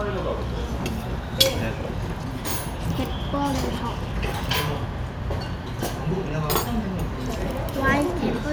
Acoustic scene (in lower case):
restaurant